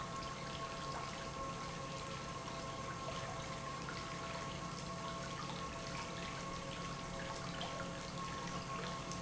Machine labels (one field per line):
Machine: pump